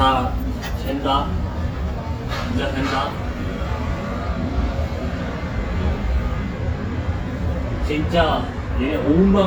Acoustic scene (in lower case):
restaurant